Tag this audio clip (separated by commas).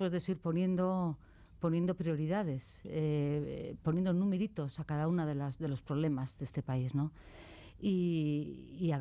Speech